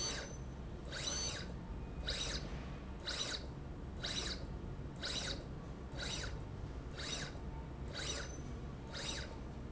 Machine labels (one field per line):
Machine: slide rail